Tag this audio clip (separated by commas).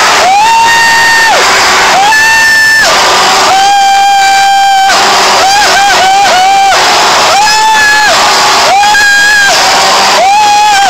Crackle